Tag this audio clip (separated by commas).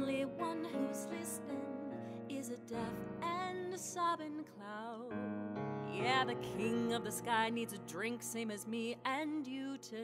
Music